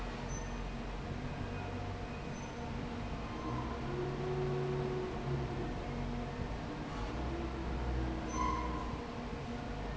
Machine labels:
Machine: fan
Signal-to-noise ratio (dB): -6 dB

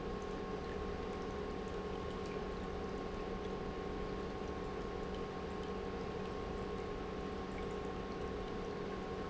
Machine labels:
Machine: pump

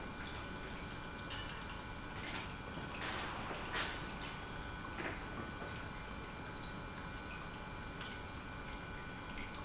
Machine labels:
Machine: pump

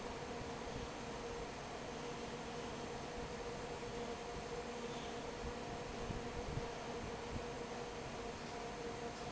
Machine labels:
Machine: fan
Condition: normal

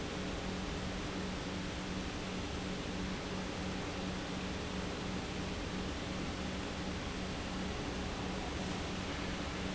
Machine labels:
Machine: pump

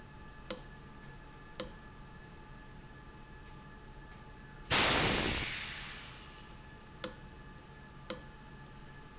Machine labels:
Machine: valve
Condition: abnormal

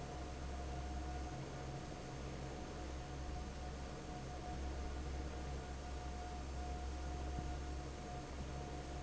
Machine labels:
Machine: fan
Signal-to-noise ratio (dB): 6 dB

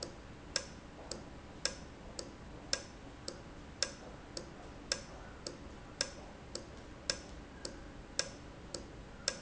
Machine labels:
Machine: valve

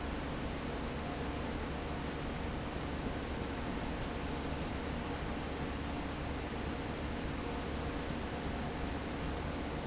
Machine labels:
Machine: fan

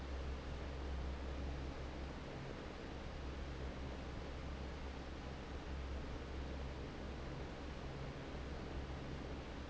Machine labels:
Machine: fan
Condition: normal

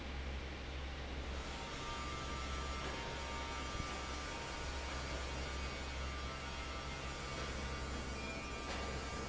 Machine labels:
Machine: fan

